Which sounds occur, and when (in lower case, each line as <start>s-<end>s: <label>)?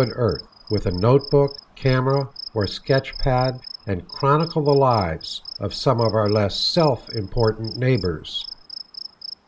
0.0s-9.4s: background noise
5.5s-8.5s: man speaking
8.4s-9.4s: cricket